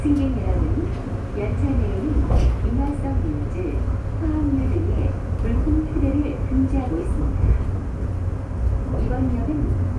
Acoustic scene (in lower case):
subway train